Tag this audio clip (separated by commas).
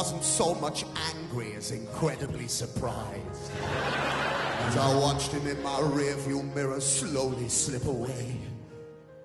Speech, Music